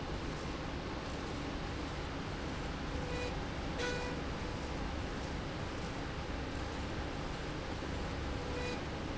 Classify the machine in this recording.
slide rail